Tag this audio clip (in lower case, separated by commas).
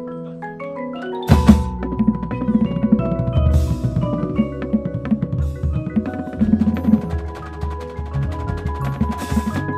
music, wood block, percussion